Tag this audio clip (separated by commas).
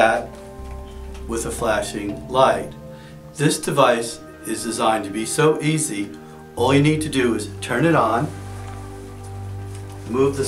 Speech, Music